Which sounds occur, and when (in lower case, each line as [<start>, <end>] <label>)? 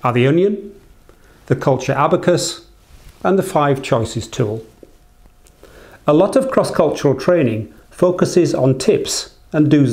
[0.00, 9.92] background noise
[0.04, 0.85] male speech
[1.05, 1.18] generic impact sounds
[1.19, 1.49] breathing
[1.49, 2.67] male speech
[2.79, 3.14] breathing
[3.23, 4.76] male speech
[4.81, 4.86] generic impact sounds
[5.25, 5.29] generic impact sounds
[5.43, 5.52] generic impact sounds
[5.63, 5.99] breathing
[6.06, 7.69] male speech
[7.74, 7.90] breathing
[7.95, 9.29] male speech
[9.49, 9.92] male speech